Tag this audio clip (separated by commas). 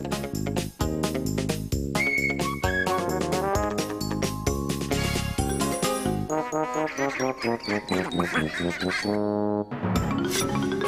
outside, rural or natural, Music